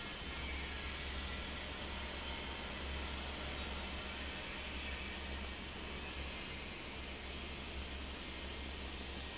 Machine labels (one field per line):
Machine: fan